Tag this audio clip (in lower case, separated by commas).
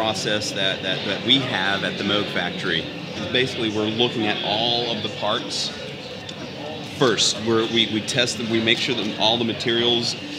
speech